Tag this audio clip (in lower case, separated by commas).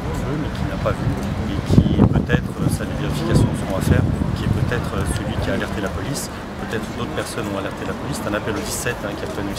speech